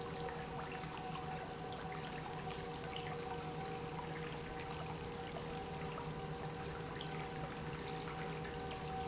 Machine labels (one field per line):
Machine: pump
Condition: normal